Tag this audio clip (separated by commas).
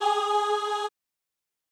Singing, Musical instrument, Music, Human voice